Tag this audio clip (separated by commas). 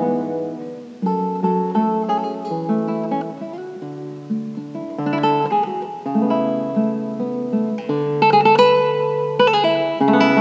Plucked string instrument, Musical instrument, Guitar, Acoustic guitar, Music